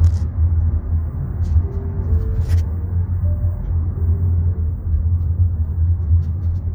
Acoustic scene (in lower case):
car